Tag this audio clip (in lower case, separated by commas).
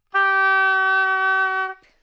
music, wind instrument, musical instrument